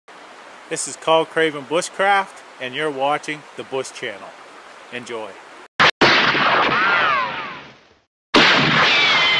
A man speaks as water rushes in the background, followed by gunshot and ricochet sound effects